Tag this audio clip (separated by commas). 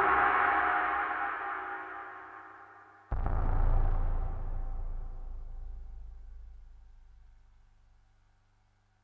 Sound effect